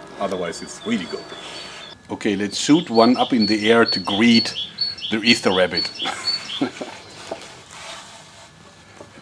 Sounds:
Speech

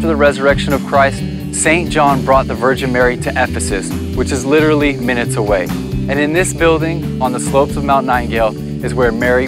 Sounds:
Music, Speech

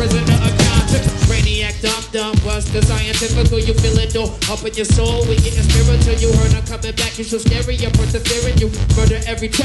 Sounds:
Musical instrument, Music

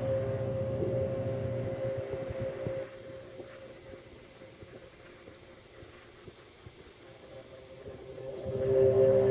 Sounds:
Music

